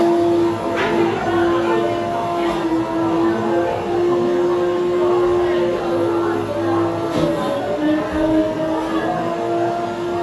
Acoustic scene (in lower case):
cafe